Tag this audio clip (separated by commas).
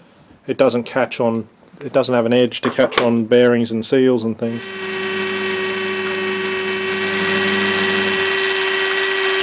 inside a small room, Speech, Tools